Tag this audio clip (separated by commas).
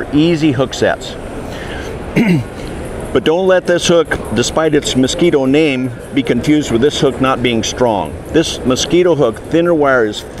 Speech